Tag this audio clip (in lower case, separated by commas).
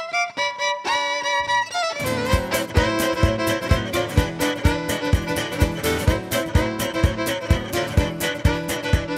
music, singing, violin